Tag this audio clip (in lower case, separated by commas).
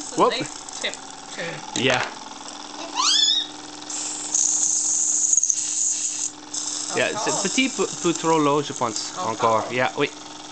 engine, speech